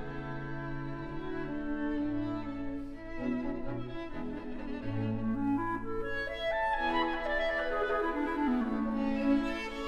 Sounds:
music

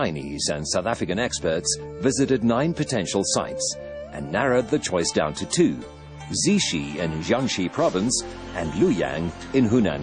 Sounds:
speech, music

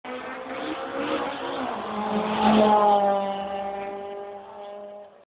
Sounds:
vehicle, car

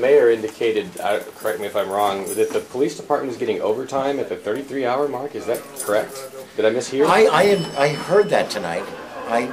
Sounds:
speech

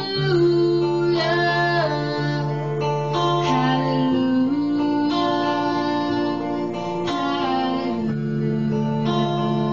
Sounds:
music, female singing

